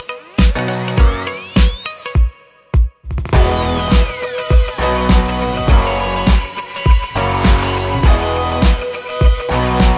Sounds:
Music, Exciting music

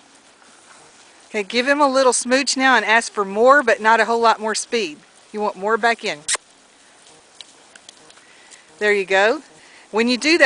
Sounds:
Speech, Horse, Clip-clop, Animal

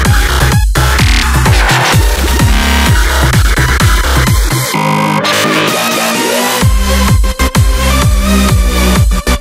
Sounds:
Electronic dance music, Music

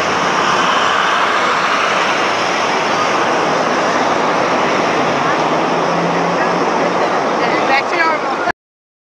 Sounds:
Car, Truck, Speech, Vehicle, outside, urban or man-made

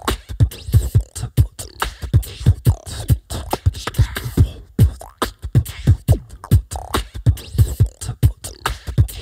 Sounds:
Music, Beatboxing

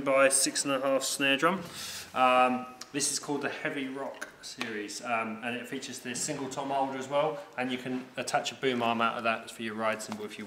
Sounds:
Speech

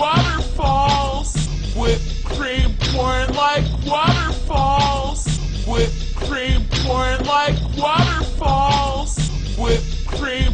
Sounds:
Speech, Music

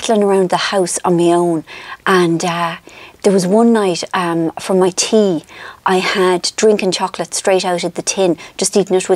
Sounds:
Speech

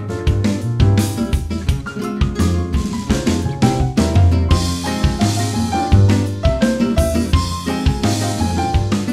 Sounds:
Jazz

